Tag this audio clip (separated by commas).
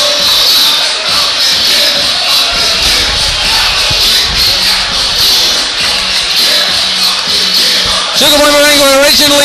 Speech, Music